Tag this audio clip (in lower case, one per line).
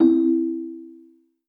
telephone
ringtone
alarm